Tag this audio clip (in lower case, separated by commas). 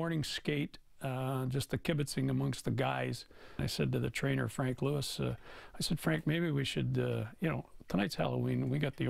speech